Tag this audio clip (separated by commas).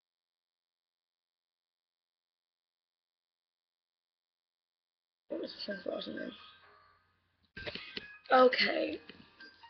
Speech, Music